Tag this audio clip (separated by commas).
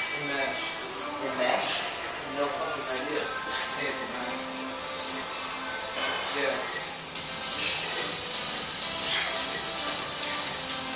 inside a large room or hall, Speech, Music